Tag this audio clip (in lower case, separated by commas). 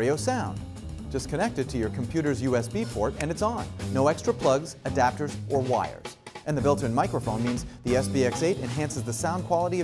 speech, music